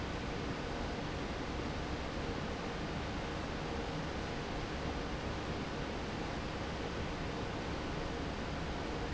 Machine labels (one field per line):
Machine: fan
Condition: normal